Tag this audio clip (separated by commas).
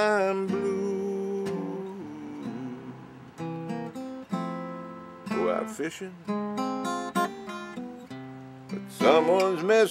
Music